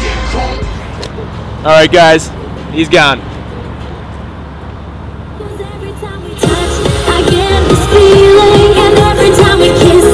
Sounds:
speech, music

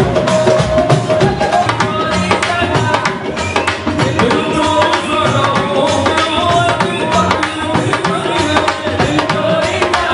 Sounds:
music, male singing

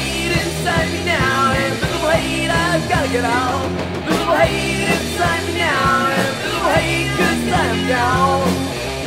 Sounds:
music

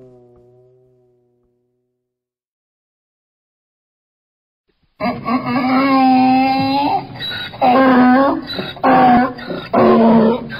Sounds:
donkey

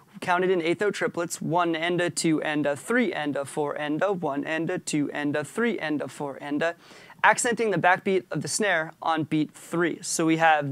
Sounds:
speech

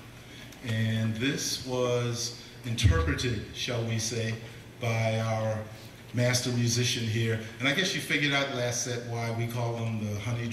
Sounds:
speech

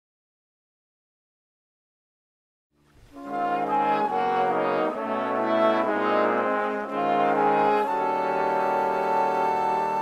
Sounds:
trombone, trumpet, brass instrument

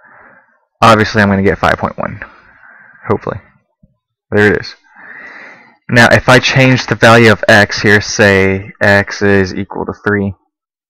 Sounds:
speech, narration

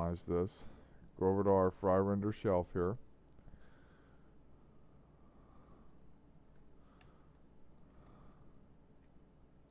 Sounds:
speech, monologue

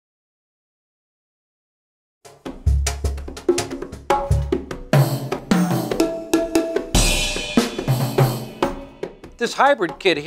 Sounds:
music, drum kit, cymbal, snare drum, musical instrument, speech, hi-hat, drum

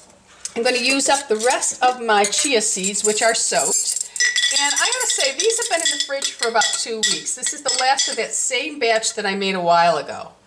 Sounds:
speech, dishes, pots and pans, inside a small room

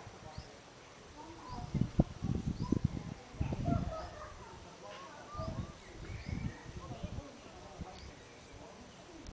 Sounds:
speech

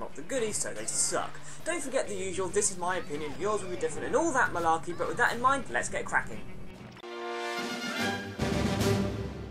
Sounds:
speech, music

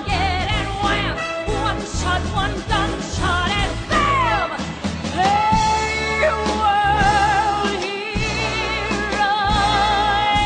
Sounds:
music

